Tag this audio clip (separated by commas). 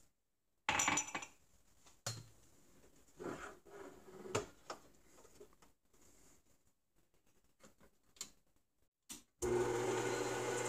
eletric blender running